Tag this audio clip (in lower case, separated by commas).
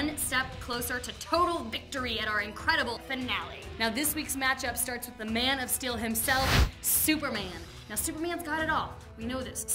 speech, music